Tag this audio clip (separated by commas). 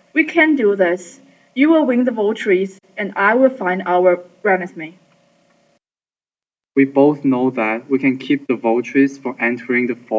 Speech